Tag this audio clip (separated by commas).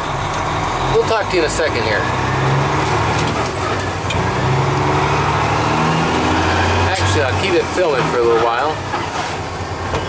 Truck, outside, rural or natural, Speech, Vehicle